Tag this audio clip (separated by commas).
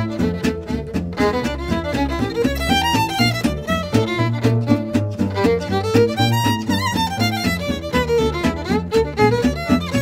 Music, Violin, Musical instrument